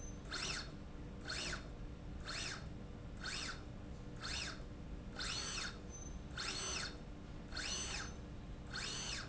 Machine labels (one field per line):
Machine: slide rail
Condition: normal